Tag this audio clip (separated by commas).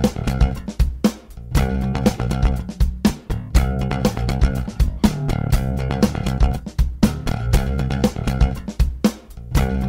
Music